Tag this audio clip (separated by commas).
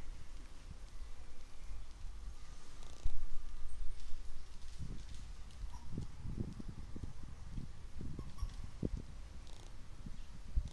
Rustling leaves, Bird, Bird vocalization